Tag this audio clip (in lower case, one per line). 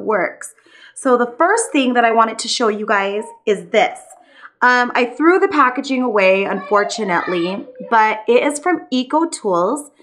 speech